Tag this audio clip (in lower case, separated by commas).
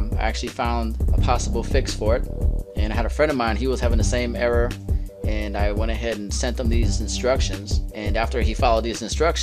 music, speech